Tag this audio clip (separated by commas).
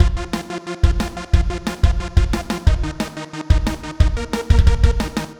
Music, Percussion, Musical instrument, Drum kit